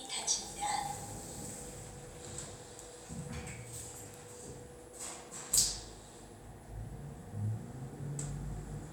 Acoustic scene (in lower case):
elevator